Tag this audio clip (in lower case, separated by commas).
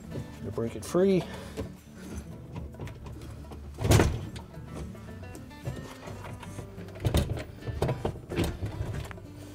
music, speech